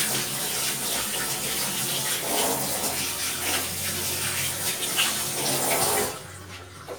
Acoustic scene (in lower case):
kitchen